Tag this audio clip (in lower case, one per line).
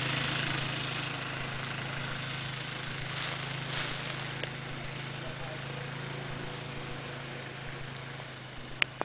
outside, rural or natural
vehicle